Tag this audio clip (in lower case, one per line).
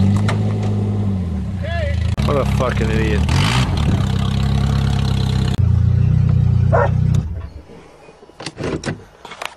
vehicle
outside, urban or man-made
car
speech